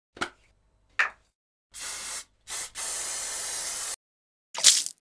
Spray noise and water splash